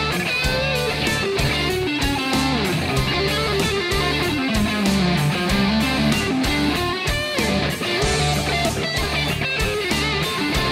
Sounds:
Music

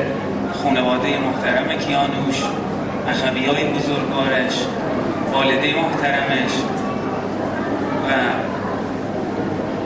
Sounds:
Narration, Speech, Male speech

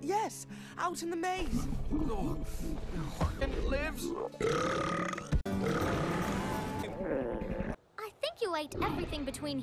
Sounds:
people burping

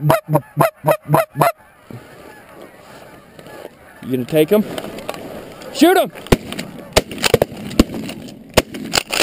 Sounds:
Fowl, Goose, Honk

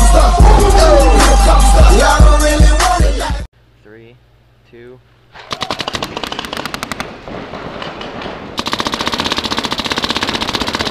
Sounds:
Machine gun

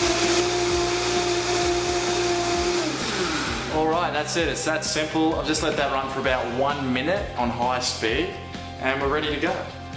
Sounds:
Blender

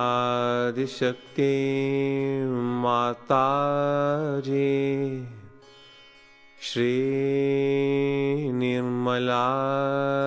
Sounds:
Music, Mantra

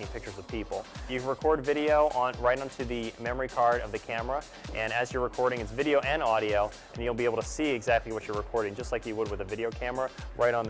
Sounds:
Speech, Music

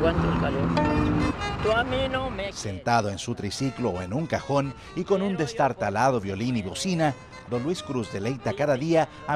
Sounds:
Speech, Musical instrument, fiddle, Music

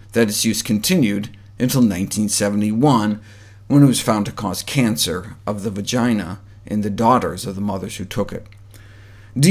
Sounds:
Speech

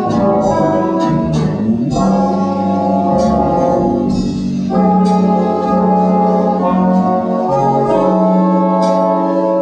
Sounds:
Percussion, Bass drum, Snare drum, Drum, Rimshot, Drum kit

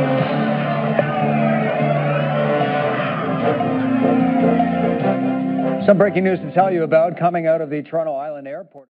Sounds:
Music, Speech

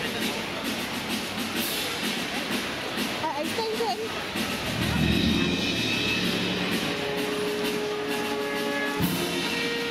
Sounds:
Speech, Music

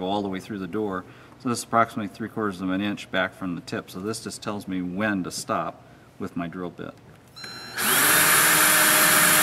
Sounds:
Drill, Power tool, Tools

